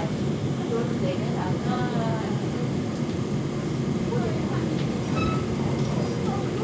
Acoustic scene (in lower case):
subway train